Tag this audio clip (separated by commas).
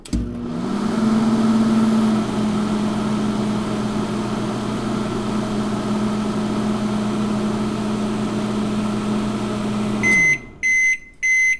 Microwave oven, Domestic sounds